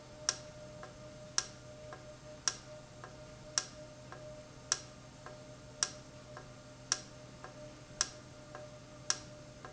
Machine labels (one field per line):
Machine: valve